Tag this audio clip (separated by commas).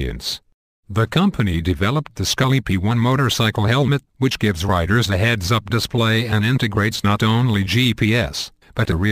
Speech